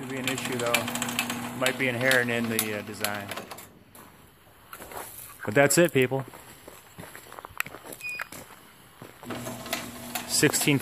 A man's speech followed by beeping and a door opening